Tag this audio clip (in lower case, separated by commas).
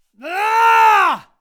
shout, screaming, human voice